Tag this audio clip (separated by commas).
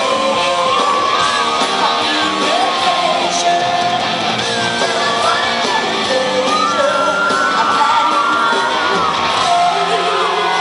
Singing, inside a large room or hall, Whoop, Music